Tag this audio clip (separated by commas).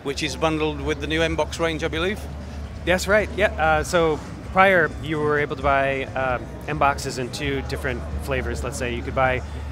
Speech